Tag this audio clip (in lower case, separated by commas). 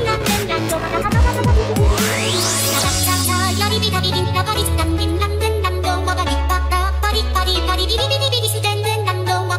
music